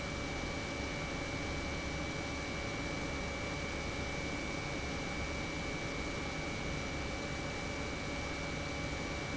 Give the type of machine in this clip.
pump